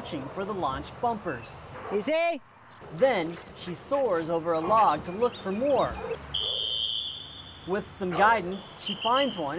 A man talks, as a dog barks and a whistle is blown